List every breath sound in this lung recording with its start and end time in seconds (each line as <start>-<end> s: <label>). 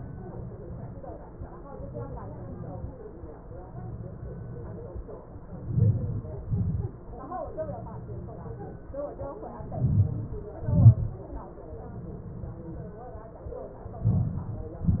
5.69-6.26 s: inhalation
5.69-6.26 s: crackles
6.47-6.92 s: exhalation
6.47-6.92 s: crackles
9.88-10.32 s: inhalation
9.88-10.32 s: crackles
10.68-11.13 s: exhalation
10.68-11.13 s: crackles
14.15-14.54 s: inhalation
14.15-14.54 s: crackles
14.75-15.00 s: exhalation
14.75-15.00 s: crackles